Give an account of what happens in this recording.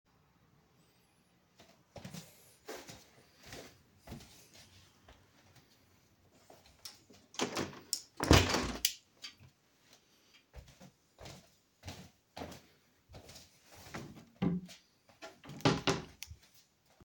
I walk to the window inside my bedroom and close it. Afterwards I open and close my wardrobe.